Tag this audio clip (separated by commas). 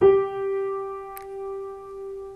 Piano, Musical instrument, Keyboard (musical), Music